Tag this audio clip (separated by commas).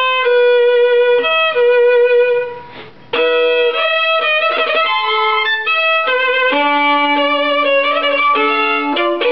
Musical instrument, Violin, Music, playing violin